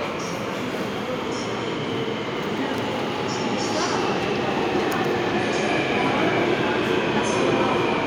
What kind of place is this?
subway station